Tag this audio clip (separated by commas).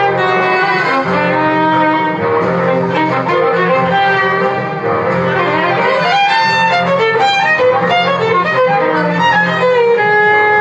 Music, Musical instrument, Violin